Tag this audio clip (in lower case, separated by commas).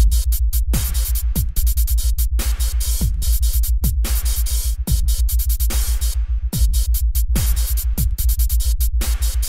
dubstep, music, electronic music